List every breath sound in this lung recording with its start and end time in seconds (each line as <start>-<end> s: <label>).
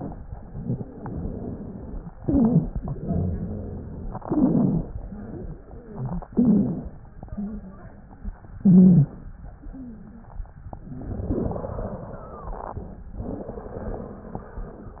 0.27-0.82 s: inhalation
0.27-0.82 s: rhonchi
0.84-2.18 s: exhalation
0.84-2.18 s: wheeze
2.18-2.73 s: inhalation
2.18-2.73 s: rhonchi
2.79-4.20 s: exhalation
2.79-4.20 s: rhonchi
4.27-4.88 s: inhalation
4.27-4.88 s: rhonchi
4.93-6.28 s: exhalation
4.93-6.28 s: wheeze
6.32-6.93 s: inhalation
6.32-6.93 s: rhonchi
7.13-8.48 s: exhalation
7.13-8.48 s: wheeze
8.60-9.20 s: inhalation
8.60-9.20 s: rhonchi